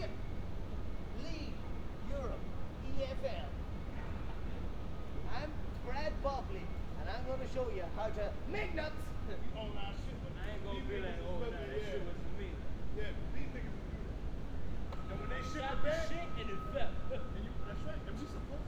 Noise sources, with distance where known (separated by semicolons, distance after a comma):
person or small group talking, near